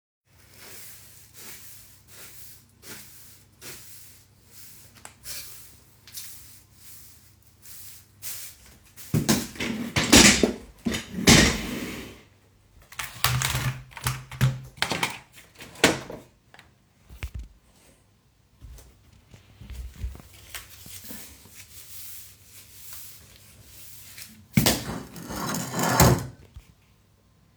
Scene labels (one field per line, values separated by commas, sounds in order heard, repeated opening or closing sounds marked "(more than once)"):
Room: bedroom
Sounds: keyboard typing